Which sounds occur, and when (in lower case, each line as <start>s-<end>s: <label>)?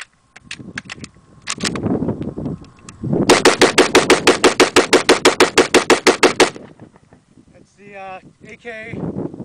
0.0s-0.1s: generic impact sounds
0.0s-9.4s: mechanisms
0.0s-9.4s: wind
0.3s-0.5s: generic impact sounds
0.3s-7.1s: wind noise (microphone)
0.7s-1.1s: generic impact sounds
1.4s-1.7s: generic impact sounds
2.2s-2.2s: tick
2.4s-2.5s: tick
2.6s-2.9s: tick
3.2s-6.5s: machine gun
6.5s-7.2s: echo
7.3s-7.6s: wind noise (microphone)
7.5s-8.2s: man speaking
8.1s-8.5s: wind noise (microphone)
8.4s-9.0s: man speaking
8.8s-9.4s: wind noise (microphone)